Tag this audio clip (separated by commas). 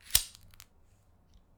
Fire